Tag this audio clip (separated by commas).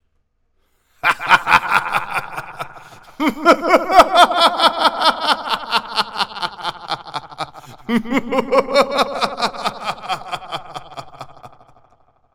Laughter, Human voice